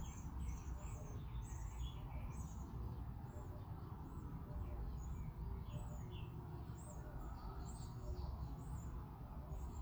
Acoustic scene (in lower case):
park